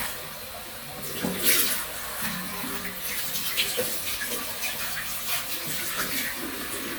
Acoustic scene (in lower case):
restroom